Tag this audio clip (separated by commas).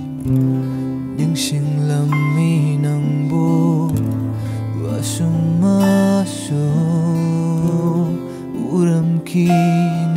Independent music, Music